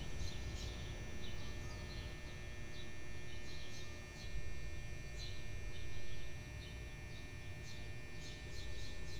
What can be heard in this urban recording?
background noise